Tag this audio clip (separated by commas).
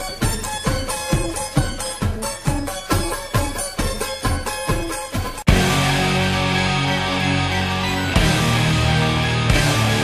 Scary music, Soul music, Music